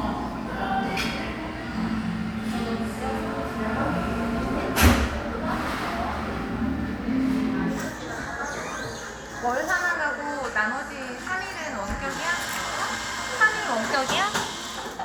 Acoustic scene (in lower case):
cafe